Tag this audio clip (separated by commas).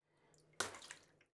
Splash, home sounds, Bathtub (filling or washing), Water, Liquid